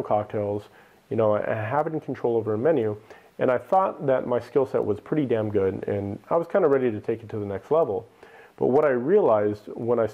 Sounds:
speech

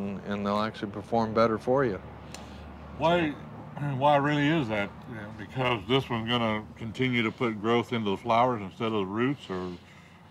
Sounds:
speech

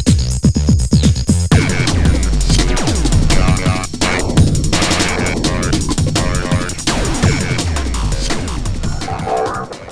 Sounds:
hum
throbbing

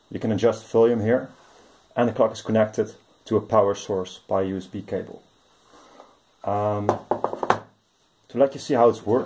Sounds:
speech

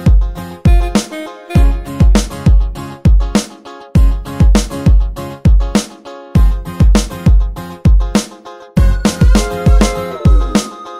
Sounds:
music

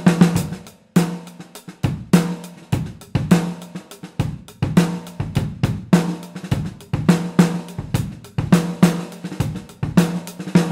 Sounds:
playing snare drum

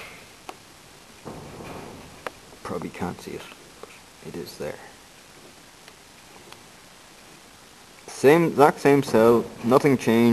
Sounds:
speech

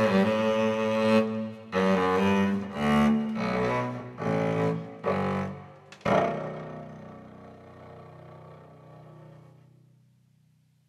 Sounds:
cello
double bass
music

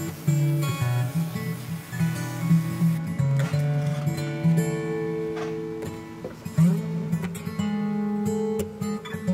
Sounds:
music
plucked string instrument
acoustic guitar
musical instrument
strum

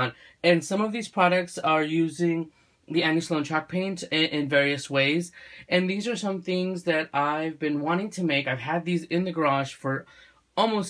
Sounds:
speech

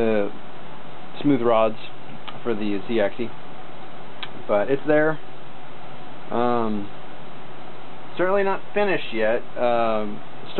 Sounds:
speech

